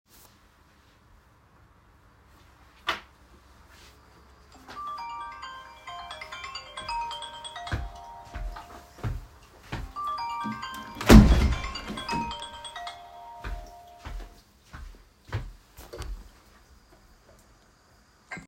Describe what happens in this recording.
While the phone was ringing, I walked to the window and closed it firmly. Then I walked back towards the desk.